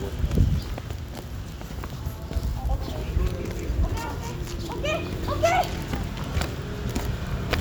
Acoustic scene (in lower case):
park